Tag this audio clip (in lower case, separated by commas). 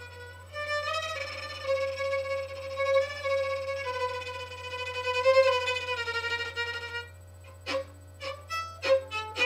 music, musical instrument, fiddle